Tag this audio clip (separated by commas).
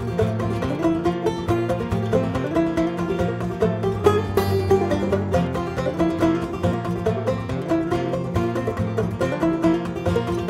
Bluegrass, Banjo, Music